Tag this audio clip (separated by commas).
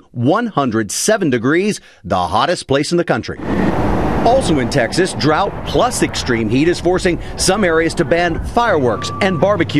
Speech